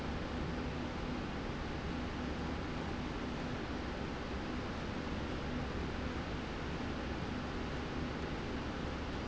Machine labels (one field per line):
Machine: slide rail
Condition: normal